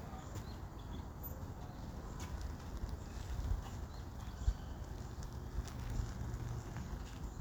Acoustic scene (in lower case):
park